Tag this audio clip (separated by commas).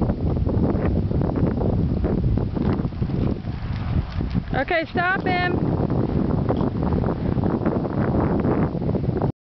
Speech, Clip-clop